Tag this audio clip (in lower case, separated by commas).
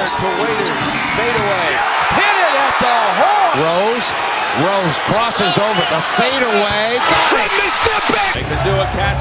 speech, music